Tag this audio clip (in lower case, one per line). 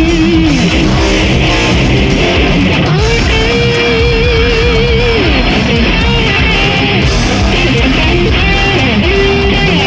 musical instrument
guitar
music
plucked string instrument
strum
electric guitar